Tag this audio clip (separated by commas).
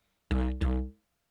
Music, Musical instrument